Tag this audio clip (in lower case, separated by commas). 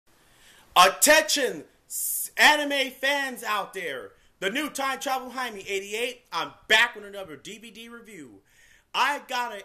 speech